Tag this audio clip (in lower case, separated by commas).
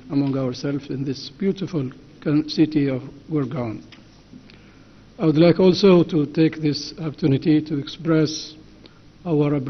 narration, speech, male speech